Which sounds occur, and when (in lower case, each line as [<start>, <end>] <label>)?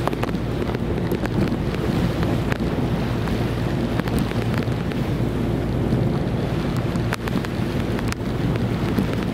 [0.00, 9.33] ocean
[0.00, 9.33] ship
[0.00, 9.33] wind
[8.26, 9.33] wind noise (microphone)